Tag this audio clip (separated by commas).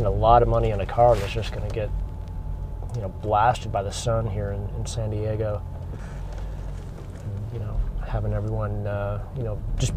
Vehicle, Car